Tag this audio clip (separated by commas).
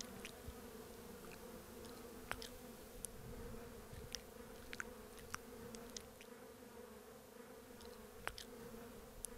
housefly buzzing